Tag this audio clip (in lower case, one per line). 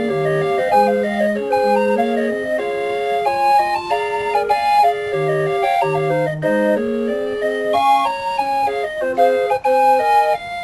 organ
music